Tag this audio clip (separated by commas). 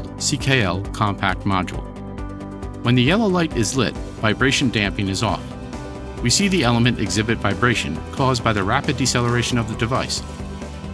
Music, Speech